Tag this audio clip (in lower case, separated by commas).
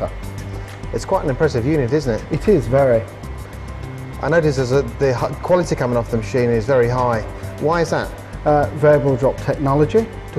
music, speech